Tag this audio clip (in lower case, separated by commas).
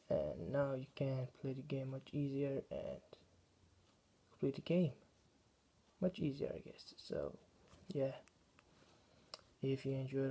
speech